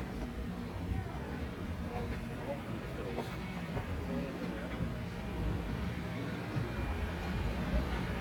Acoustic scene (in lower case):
residential area